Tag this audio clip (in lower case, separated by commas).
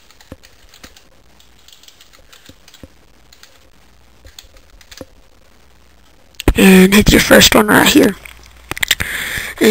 speech, mouse